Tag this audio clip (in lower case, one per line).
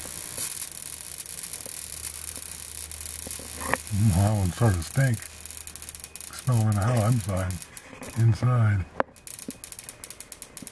speech